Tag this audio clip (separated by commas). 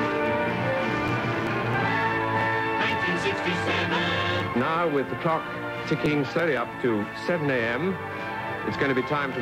Music, Radio, Speech